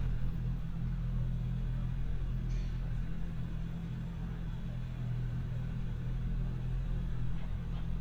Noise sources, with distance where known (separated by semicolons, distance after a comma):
medium-sounding engine, near